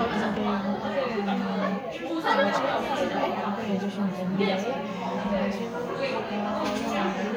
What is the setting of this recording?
crowded indoor space